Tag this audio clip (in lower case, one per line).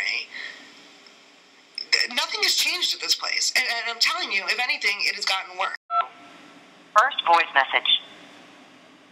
speech
telephone dialing